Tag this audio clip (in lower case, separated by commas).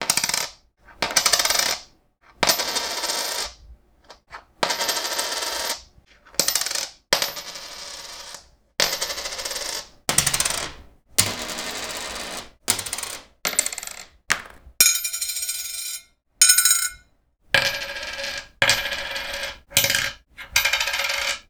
home sounds, coin (dropping)